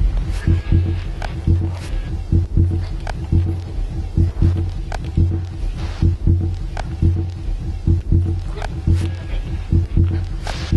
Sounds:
Music

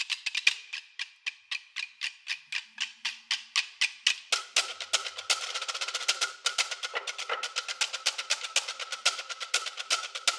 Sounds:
Music

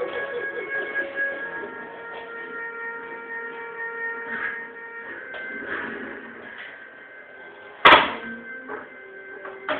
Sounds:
Music

